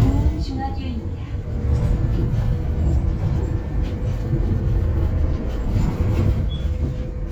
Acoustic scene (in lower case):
bus